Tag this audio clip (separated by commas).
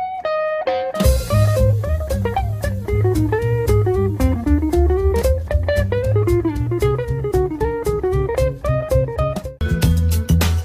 Music